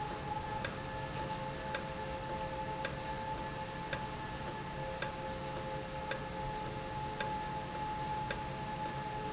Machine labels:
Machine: valve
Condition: normal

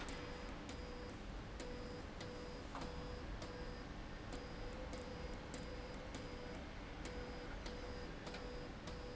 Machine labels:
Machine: slide rail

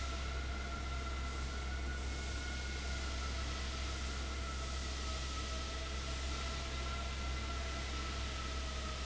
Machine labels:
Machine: fan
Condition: abnormal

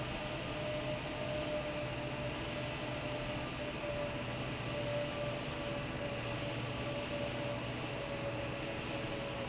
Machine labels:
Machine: fan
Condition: normal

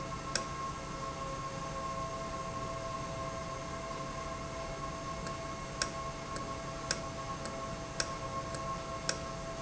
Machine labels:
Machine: valve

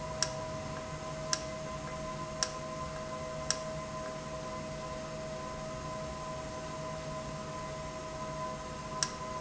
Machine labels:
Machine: valve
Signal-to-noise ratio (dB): -6 dB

